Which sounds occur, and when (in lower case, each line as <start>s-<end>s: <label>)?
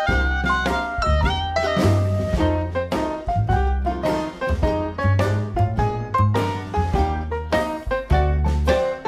0.0s-9.0s: music